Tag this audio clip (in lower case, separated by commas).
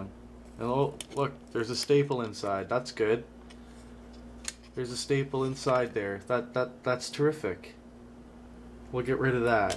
inside a small room, speech